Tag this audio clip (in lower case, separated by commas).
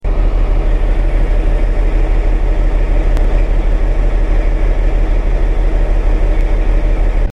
engine